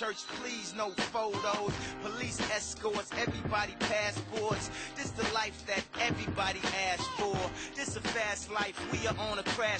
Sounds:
music

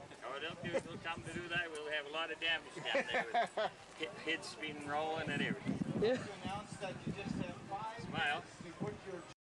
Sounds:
speech

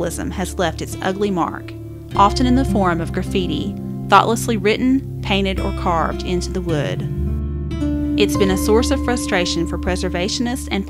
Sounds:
music
speech

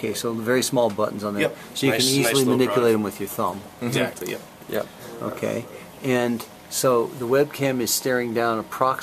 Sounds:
speech

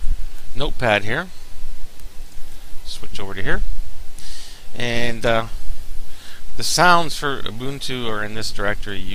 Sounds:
speech

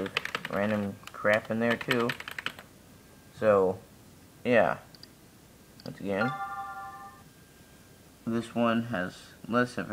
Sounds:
typing

